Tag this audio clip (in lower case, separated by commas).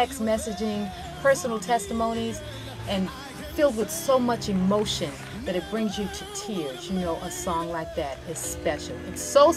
music, speech